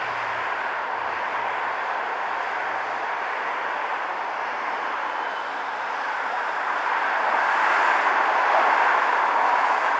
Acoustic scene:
street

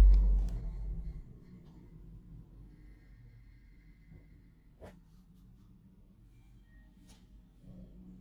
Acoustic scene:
elevator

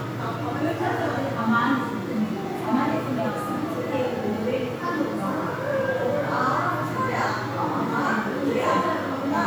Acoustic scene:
crowded indoor space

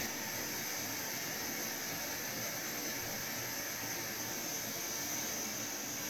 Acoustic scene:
restroom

